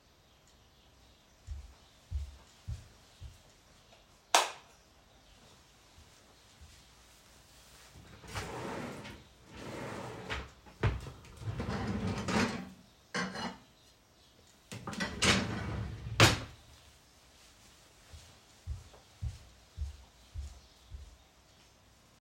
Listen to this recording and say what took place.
I walked into the kitchen, turn on the lights and walked over to a drawer. I opened a drawer, closed it and opened another, from which I took a plate, before closing it also. Then I walked away.